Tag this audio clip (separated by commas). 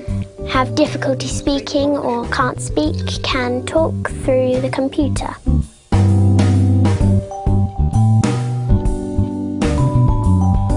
Music, Speech